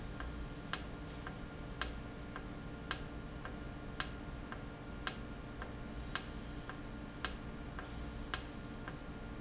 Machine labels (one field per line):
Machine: valve